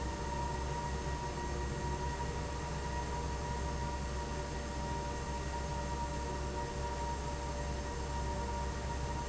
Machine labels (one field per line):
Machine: fan